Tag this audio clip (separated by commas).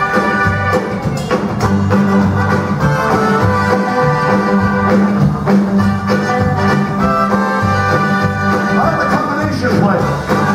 Orchestra, Music, Speech